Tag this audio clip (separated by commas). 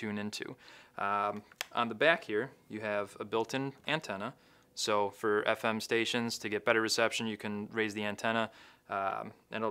Speech